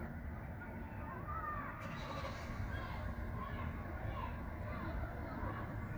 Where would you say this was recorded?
in a residential area